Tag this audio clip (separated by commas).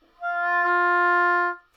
Wind instrument, Music, Musical instrument